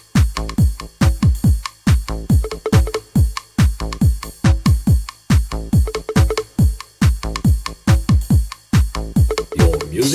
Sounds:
house music, music

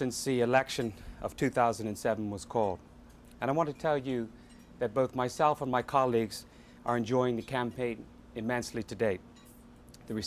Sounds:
monologue, speech, man speaking

